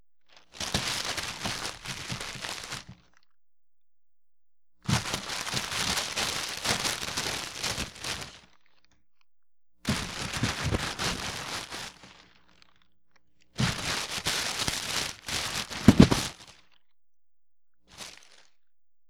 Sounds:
crinkling

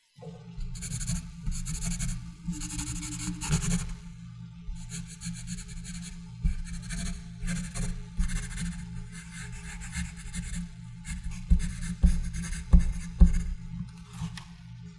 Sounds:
Domestic sounds, Writing

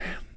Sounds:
Human voice, Whispering

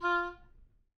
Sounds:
woodwind instrument, Music, Musical instrument

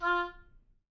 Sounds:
Music, Wind instrument, Musical instrument

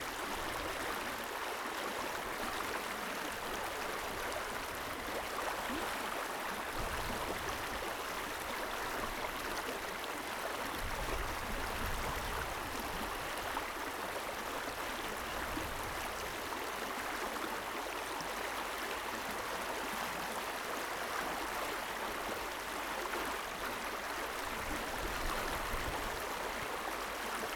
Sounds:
Stream, Water

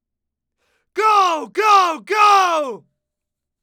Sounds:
man speaking, Speech, Human voice, Shout

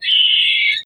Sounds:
Wild animals, Bird, bird song, Animal

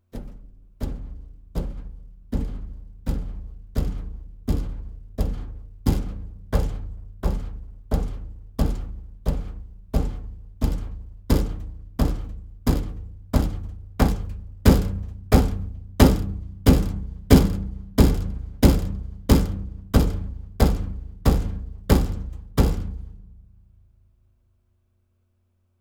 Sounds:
Thump

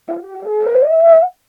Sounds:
Brass instrument, Music, Musical instrument

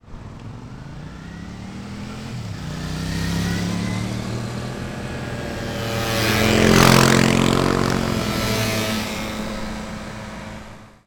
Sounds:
Motorcycle, Motor vehicle (road), Vehicle

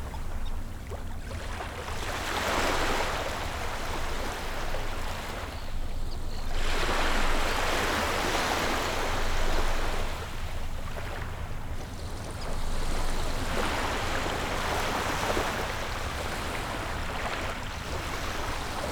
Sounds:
Waves, Ocean, Water

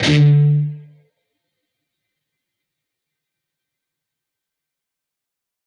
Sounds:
Music, Plucked string instrument, Guitar, Musical instrument

